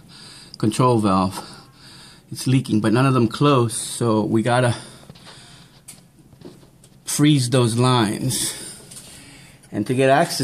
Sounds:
Speech

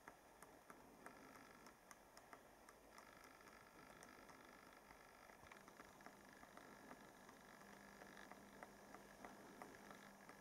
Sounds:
woodpecker pecking tree

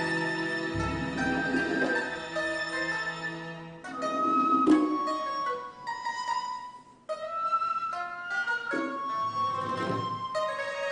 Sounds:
Classical music, Music, Pizzicato

